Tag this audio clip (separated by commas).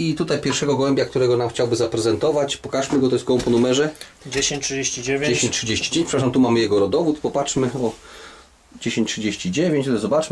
inside a small room, Speech